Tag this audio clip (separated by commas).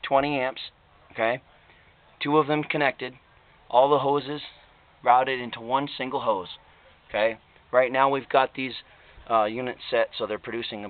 Speech